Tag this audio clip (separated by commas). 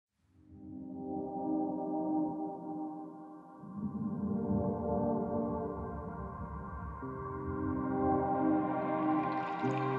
Music, Ambient music